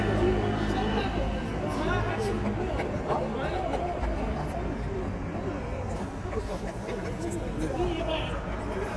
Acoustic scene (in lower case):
street